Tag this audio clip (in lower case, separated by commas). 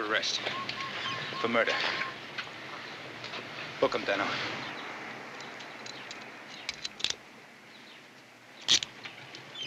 speech